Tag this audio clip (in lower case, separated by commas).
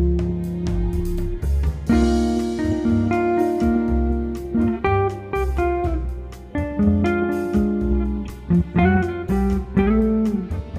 music, guitar, musical instrument, plucked string instrument, electric guitar, strum